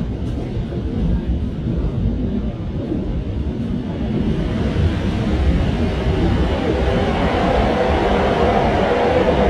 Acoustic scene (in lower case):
subway train